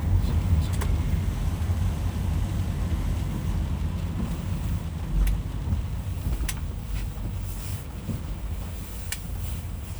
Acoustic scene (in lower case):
car